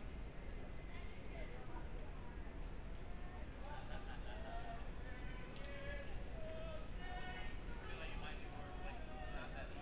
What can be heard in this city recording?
unidentified human voice